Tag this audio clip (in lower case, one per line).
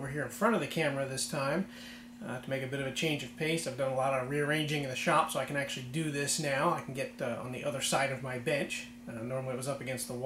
opening or closing drawers